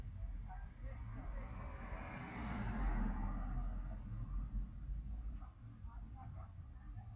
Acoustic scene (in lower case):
residential area